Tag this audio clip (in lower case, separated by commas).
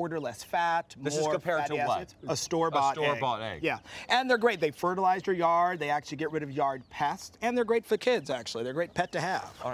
speech